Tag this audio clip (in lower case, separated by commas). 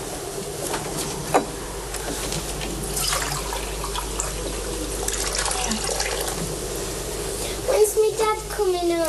liquid, inside a small room, sink (filling or washing), water, speech, dribble